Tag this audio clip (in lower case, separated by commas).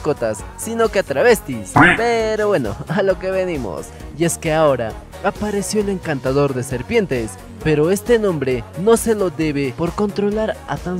music, speech, animal